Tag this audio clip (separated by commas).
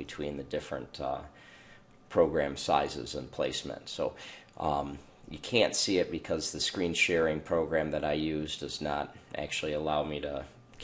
Speech